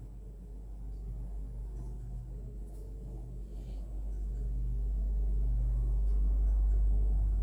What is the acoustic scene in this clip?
elevator